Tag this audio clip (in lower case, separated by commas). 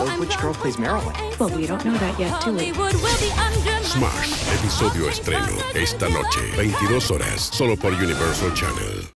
speech, music, smash